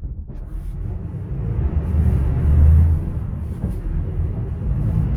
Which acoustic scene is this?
bus